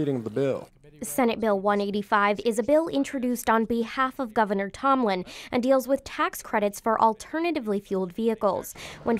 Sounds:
speech

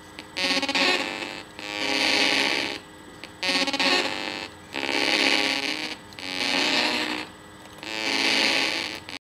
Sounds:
music
musical instrument
electronic music

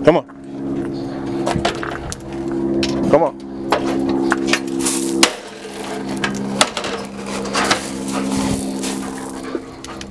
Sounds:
speech
dog
animal

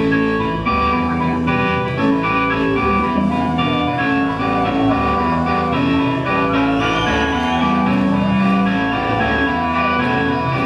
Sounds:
independent music
music

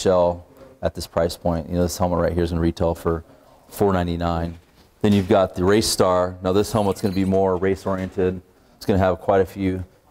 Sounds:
speech

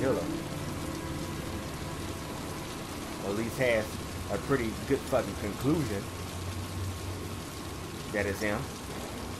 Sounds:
speech
rain on surface
music

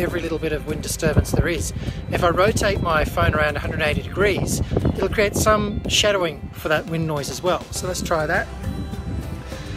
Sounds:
music
speech

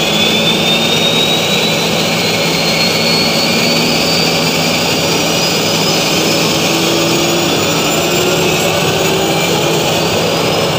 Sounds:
jet engine

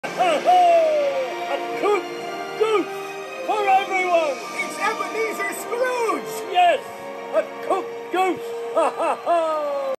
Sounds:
music
speech

